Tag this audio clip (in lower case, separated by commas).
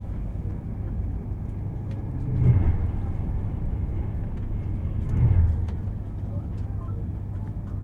rail transport, vehicle, train